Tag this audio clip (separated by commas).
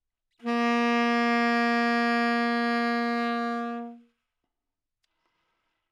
Music, Musical instrument, Wind instrument